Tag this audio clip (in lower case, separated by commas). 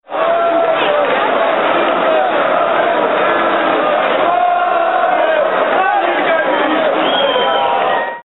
crowd, human group actions